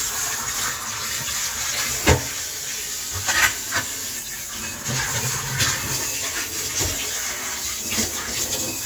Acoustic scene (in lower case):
kitchen